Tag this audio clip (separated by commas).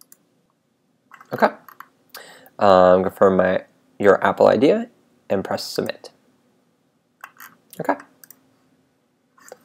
Speech, Clicking